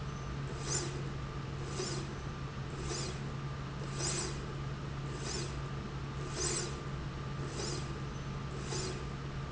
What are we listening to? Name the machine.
slide rail